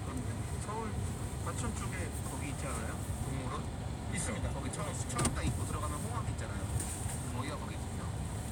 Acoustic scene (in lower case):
car